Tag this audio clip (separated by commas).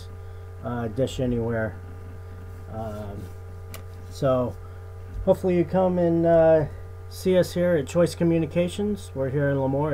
Speech